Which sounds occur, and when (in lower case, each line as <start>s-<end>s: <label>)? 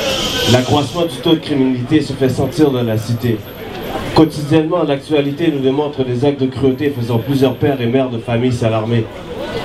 0.0s-0.6s: mechanisms
0.4s-3.4s: man speaking
0.6s-9.6s: background noise
3.6s-4.3s: speech
4.2s-9.0s: man speaking
9.2s-9.6s: speech